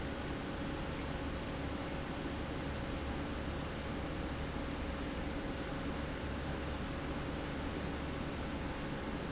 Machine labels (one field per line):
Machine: pump